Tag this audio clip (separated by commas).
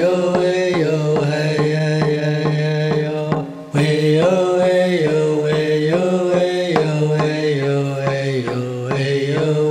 Music, Mantra